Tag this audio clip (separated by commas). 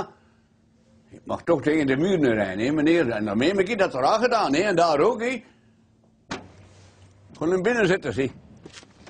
Speech